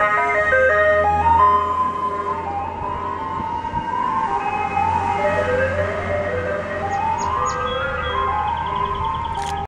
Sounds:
music, vehicle

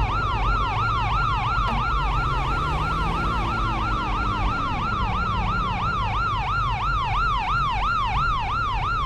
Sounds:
car passing by

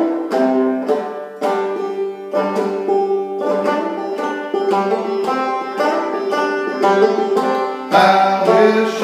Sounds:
music, banjo, playing banjo

